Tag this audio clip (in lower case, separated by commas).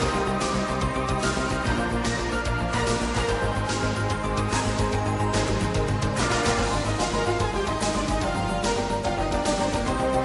funk, pop music, music